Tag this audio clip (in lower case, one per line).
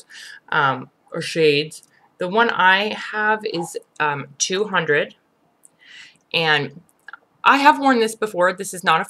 speech